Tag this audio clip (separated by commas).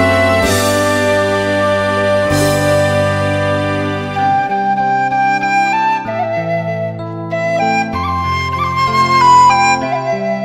Music, Tender music, Flute